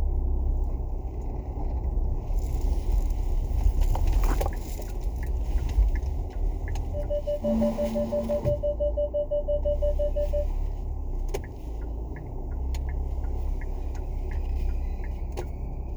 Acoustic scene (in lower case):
car